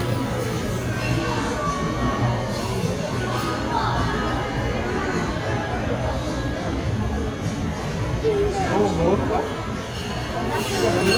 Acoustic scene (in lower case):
crowded indoor space